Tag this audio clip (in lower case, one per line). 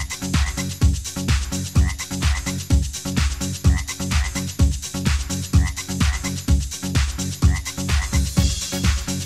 croak
frog